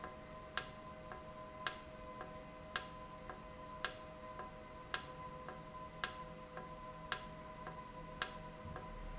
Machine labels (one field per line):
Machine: valve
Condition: normal